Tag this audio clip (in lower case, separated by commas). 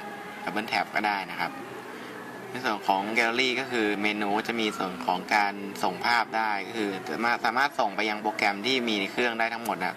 speech, music